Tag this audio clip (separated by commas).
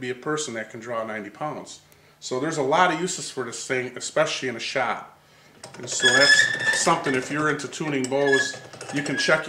Speech